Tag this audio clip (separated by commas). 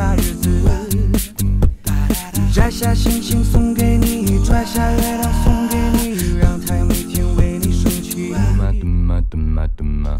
Music